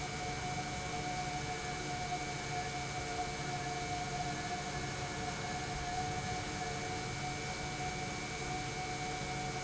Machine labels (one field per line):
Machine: pump